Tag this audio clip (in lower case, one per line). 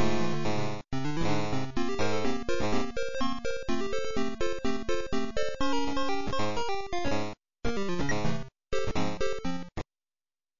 music